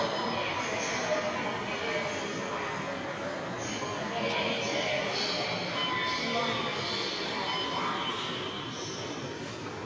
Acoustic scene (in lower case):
subway station